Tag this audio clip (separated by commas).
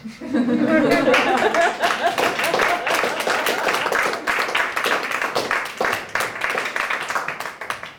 Applause, Human group actions, Laughter, Human voice